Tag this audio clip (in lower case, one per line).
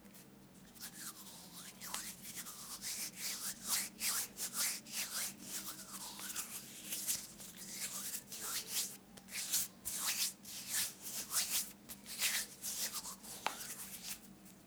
hands